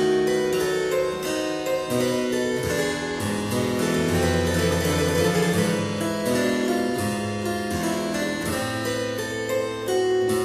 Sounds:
harpsichord, keyboard (musical)

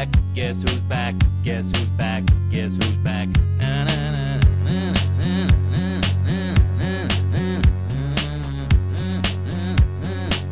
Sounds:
rhythm and blues, music, blues

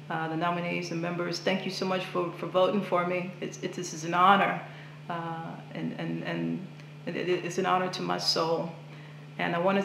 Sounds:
speech, female speech, monologue

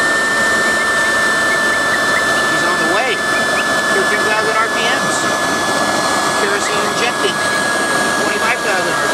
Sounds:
jet engine, speech

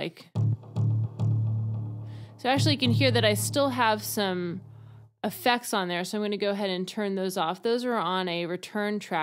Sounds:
sampler, music, speech

